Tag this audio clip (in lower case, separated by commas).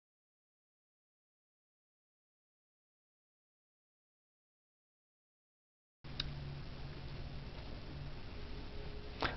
speech